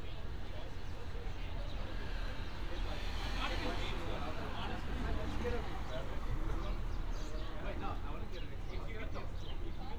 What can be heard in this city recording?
person or small group talking